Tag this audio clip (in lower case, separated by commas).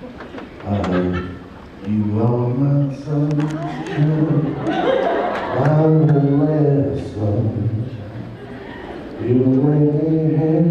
male singing, speech